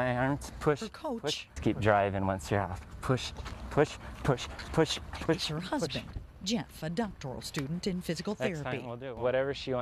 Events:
0.0s-2.8s: man speaking
0.0s-9.8s: background noise
0.0s-9.8s: conversation
2.7s-3.5s: run
3.0s-3.3s: man speaking
3.7s-4.0s: man speaking
3.7s-4.0s: run
4.2s-4.5s: run
4.2s-4.5s: man speaking
4.6s-5.0s: run
4.6s-5.0s: man speaking
5.1s-5.5s: run
5.2s-5.5s: man speaking
5.3s-6.0s: woman speaking
5.7s-6.0s: man speaking
6.4s-8.8s: woman speaking
8.4s-9.8s: man speaking

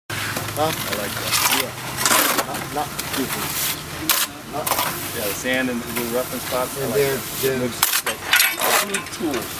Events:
0.0s-9.5s: motor vehicle (road)
0.1s-9.5s: wind
0.3s-0.4s: generic impact sounds
0.5s-0.6s: man speaking
0.5s-9.5s: conversation
0.6s-0.9s: generic impact sounds
0.8s-1.7s: man speaking
1.1s-1.6s: scrape
2.0s-2.4s: generic impact sounds
2.3s-2.4s: man speaking
2.6s-2.7s: generic impact sounds
2.7s-2.8s: man speaking
2.9s-3.1s: generic impact sounds
3.1s-3.5s: man speaking
3.2s-3.7s: scrape
3.9s-4.3s: man speaking
4.0s-4.2s: generic impact sounds
4.5s-4.6s: man speaking
4.6s-4.8s: generic impact sounds
4.8s-5.4s: scrape
5.1s-5.8s: man speaking
5.9s-7.2s: man speaking
5.9s-7.5s: scrape
5.9s-6.1s: generic impact sounds
6.3s-6.5s: generic impact sounds
7.4s-7.7s: man speaking
7.8s-8.1s: generic impact sounds
8.0s-8.1s: man speaking
8.3s-8.9s: generic impact sounds
8.5s-9.0s: man speaking
9.1s-9.2s: generic impact sounds
9.1s-9.4s: man speaking
9.3s-9.4s: generic impact sounds

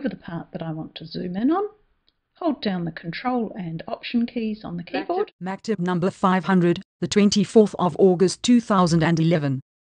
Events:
0.0s-1.7s: man speaking
0.0s-5.3s: background noise
2.0s-2.1s: clicking
2.3s-5.3s: man speaking
5.4s-6.3s: man speaking
5.4s-6.8s: background noise
5.9s-6.0s: clicking
6.4s-6.8s: man speaking
7.0s-9.6s: man speaking
7.0s-9.6s: background noise

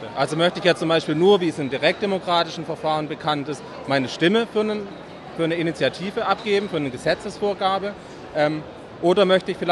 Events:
0.0s-3.5s: male speech
0.0s-9.7s: inside a public space
3.9s-4.9s: male speech
5.4s-7.9s: male speech
8.3s-8.6s: male speech
9.0s-9.7s: male speech

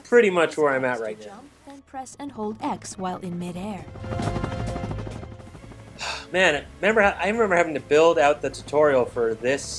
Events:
0.0s-9.7s: video game sound
0.0s-9.7s: music
0.1s-1.1s: man speaking
1.2s-1.4s: woman speaking
1.7s-3.8s: woman speaking
2.6s-5.9s: helicopter
6.4s-6.6s: man speaking
6.8s-9.6s: man speaking

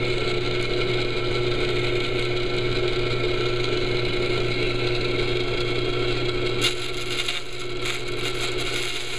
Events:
0.0s-9.1s: mechanisms

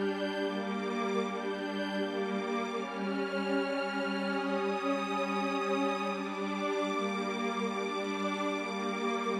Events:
0.0s-9.3s: music

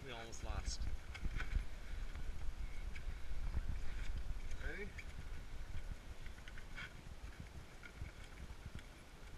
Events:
0.0s-0.8s: male speech
0.0s-9.3s: wind
0.3s-0.9s: wind noise (microphone)
1.1s-1.6s: generic impact sounds
1.2s-1.6s: wind noise (microphone)
2.9s-3.0s: generic impact sounds
3.2s-4.7s: wind noise (microphone)
3.8s-4.1s: generic impact sounds
4.4s-4.5s: generic impact sounds
4.6s-5.0s: male speech
4.9s-5.2s: generic impact sounds
5.6s-5.9s: wind noise (microphone)
6.2s-6.6s: generic impact sounds
7.8s-8.4s: generic impact sounds
8.0s-8.8s: wind noise (microphone)
8.7s-8.8s: generic impact sounds

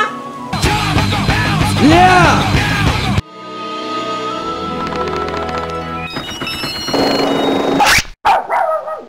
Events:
0.0s-6.0s: music
0.5s-3.2s: male singing
1.8s-2.4s: male speech
3.6s-4.7s: sound effect
4.8s-5.7s: sound effect
6.0s-8.0s: sound effect
8.2s-9.0s: background noise
8.2s-9.0s: dog

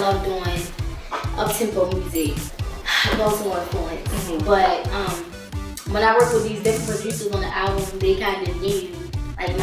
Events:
0.0s-0.9s: female speech
0.0s-9.6s: music
1.0s-2.4s: female speech
2.7s-5.1s: female speech
5.8s-8.9s: female speech

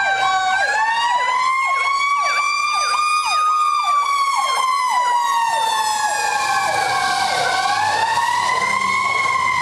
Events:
0.0s-9.6s: fire truck (siren)
0.0s-9.6s: wind

